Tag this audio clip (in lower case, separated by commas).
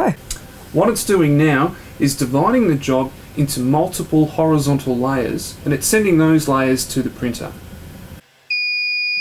speech